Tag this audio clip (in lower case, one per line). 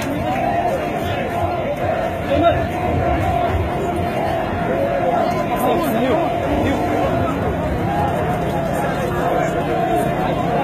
speech